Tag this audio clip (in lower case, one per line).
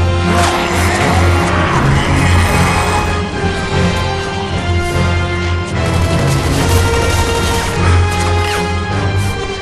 speech